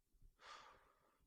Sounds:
sigh, human voice

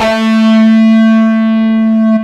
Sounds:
musical instrument, music, guitar, plucked string instrument, electric guitar

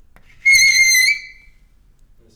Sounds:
screech

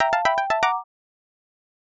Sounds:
keyboard (musical), music, alarm, ringtone, telephone, musical instrument

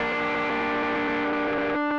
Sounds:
guitar, plucked string instrument, musical instrument, music

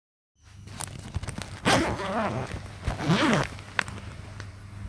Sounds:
zipper (clothing), home sounds

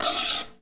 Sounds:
home sounds, cutlery

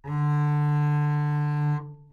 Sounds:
music, bowed string instrument, musical instrument

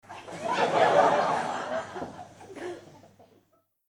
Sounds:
human group actions, laughter, crowd, human voice

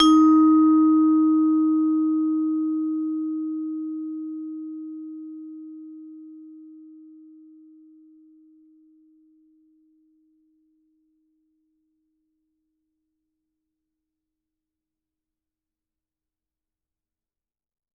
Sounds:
musical instrument, mallet percussion, percussion, music

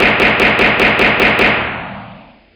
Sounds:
explosion, gunfire

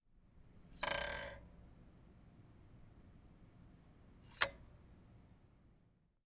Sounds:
bicycle, vehicle

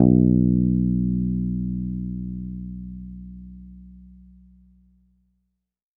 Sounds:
musical instrument, plucked string instrument, guitar, bass guitar, music

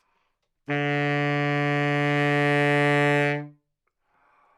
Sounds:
wind instrument, musical instrument, music

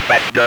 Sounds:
speech, human voice

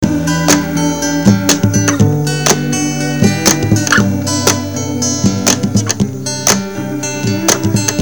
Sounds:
music, plucked string instrument, guitar, acoustic guitar, musical instrument

